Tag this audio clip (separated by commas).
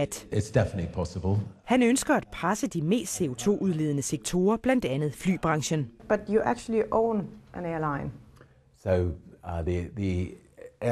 Speech